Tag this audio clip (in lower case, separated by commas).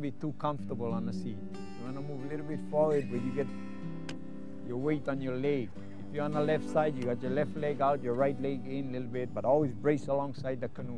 speech, music